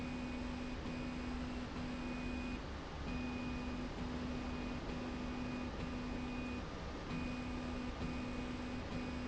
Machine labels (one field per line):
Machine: slide rail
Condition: normal